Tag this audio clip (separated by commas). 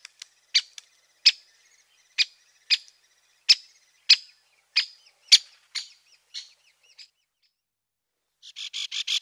woodpecker pecking tree